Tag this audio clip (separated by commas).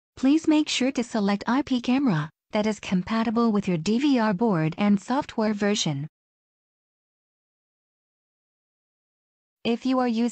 Speech